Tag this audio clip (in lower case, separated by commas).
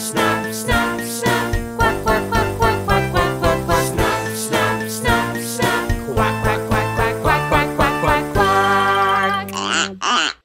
music, music for children